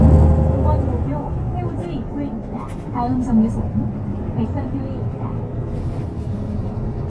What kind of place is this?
bus